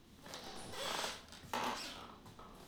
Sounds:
squeak

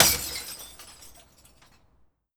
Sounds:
crushing
glass
shatter

